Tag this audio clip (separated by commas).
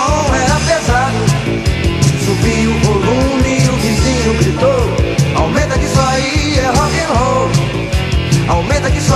Music